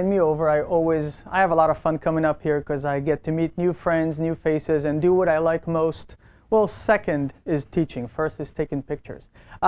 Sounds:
Speech

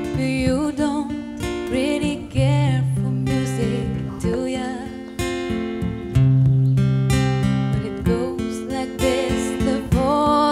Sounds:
Music

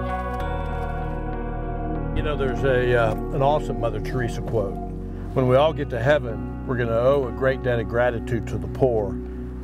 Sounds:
Music, Speech

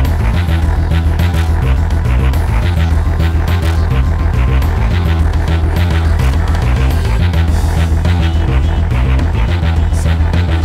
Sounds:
Musical instrument, Music, Bass guitar, Plucked string instrument, Guitar

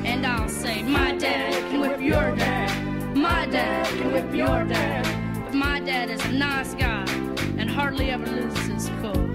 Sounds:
Music

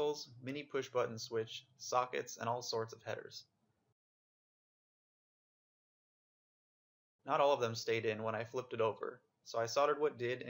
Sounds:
Speech

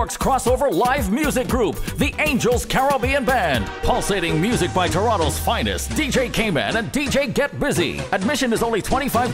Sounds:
Music, Speech

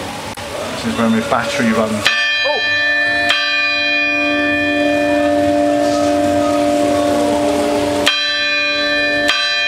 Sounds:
Bell, Speech, Church bell

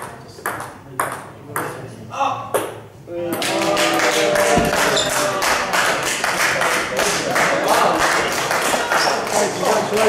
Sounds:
playing table tennis

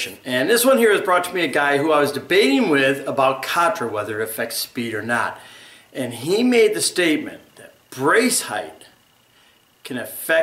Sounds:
Speech

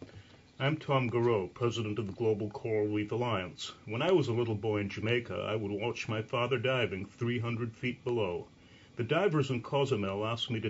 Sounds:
Speech

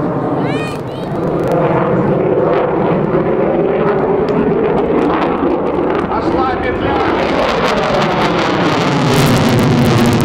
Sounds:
airplane flyby

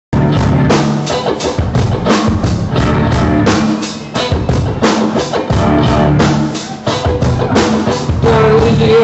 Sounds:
Singing

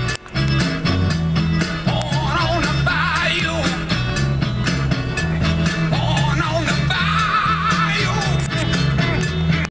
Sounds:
Music

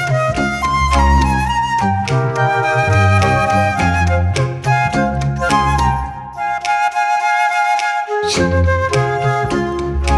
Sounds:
playing flute

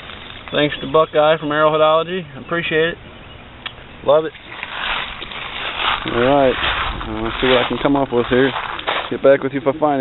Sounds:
Speech

